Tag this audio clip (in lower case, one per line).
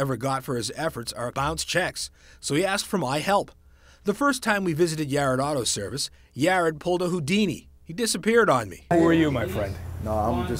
speech